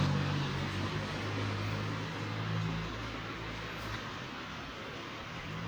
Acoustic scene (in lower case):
residential area